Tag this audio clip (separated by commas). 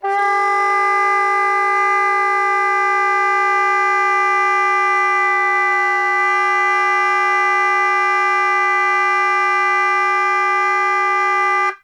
Musical instrument, woodwind instrument, Music